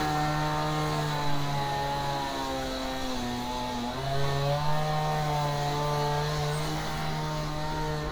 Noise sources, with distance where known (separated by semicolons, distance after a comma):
unidentified powered saw, near